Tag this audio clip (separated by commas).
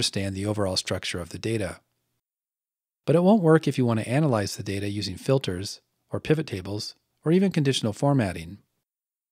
Speech